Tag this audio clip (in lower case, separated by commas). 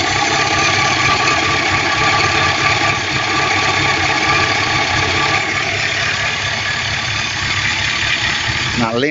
vehicle, speech